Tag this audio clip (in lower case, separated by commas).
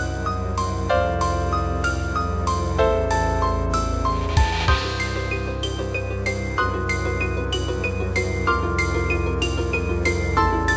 keyboard (musical), music